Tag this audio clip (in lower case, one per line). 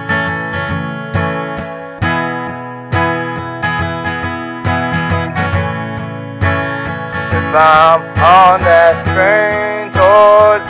music